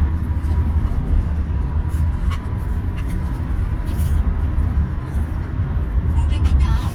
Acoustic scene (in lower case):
car